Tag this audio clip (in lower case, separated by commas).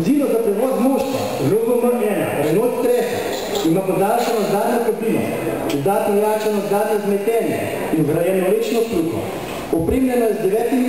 speech, inside a large room or hall